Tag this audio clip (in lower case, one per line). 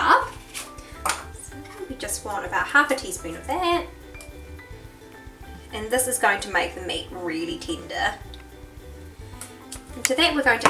speech
music